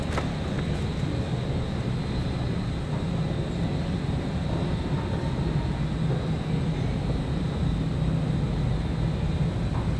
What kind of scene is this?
subway station